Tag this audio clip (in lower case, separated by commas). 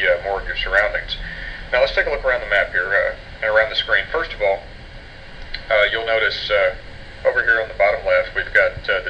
speech